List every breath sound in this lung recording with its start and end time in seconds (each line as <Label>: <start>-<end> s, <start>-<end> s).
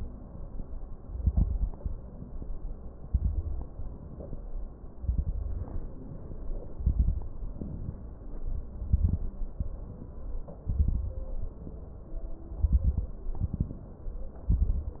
Inhalation: 3.91-4.38 s, 5.81-6.49 s, 7.50-8.03 s, 9.60-10.12 s, 11.50-12.11 s, 13.32-13.99 s
Exhalation: 0.91-1.76 s, 3.08-3.72 s, 5.00-5.79 s, 6.69-7.33 s, 8.68-9.33 s, 10.68-11.32 s, 12.54-13.19 s, 14.48-15.00 s
Crackles: 0.91-1.76 s, 3.08-3.72 s, 5.00-5.79 s, 6.69-7.33 s, 8.68-9.33 s, 10.68-11.32 s, 12.54-13.19 s, 13.32-13.99 s, 14.48-15.00 s